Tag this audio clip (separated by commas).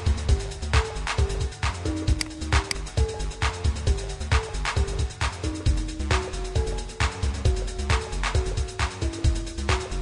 Music, Electronica